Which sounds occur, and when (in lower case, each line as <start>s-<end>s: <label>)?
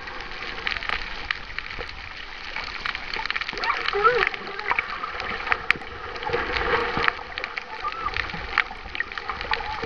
0.0s-9.8s: splash
3.5s-4.8s: human voice
7.7s-8.1s: human voice
9.5s-9.8s: human voice